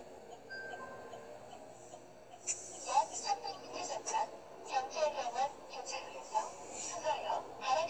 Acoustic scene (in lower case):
car